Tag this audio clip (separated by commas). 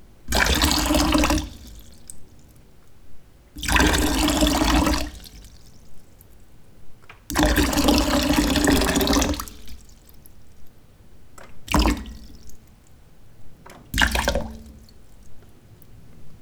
Liquid